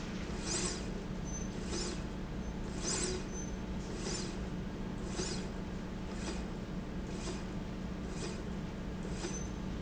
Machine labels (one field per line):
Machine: slide rail